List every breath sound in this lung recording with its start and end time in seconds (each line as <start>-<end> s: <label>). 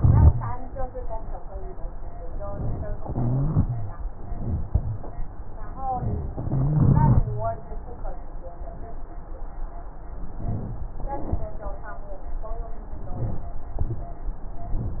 0.00-0.51 s: wheeze
2.98-3.97 s: inhalation
2.98-3.97 s: wheeze
4.17-5.09 s: exhalation
4.17-5.09 s: wheeze
5.96-6.34 s: wheeze
6.45-7.57 s: inhalation
6.45-7.57 s: wheeze
10.34-10.85 s: inhalation
11.00-11.52 s: exhalation
13.09-13.61 s: inhalation
13.85-14.36 s: exhalation